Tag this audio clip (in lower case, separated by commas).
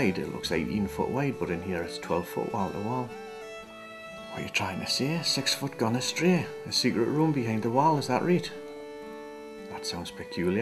narration, music, speech